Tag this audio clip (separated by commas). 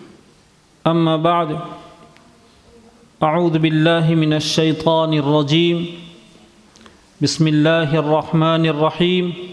Speech, Male speech, monologue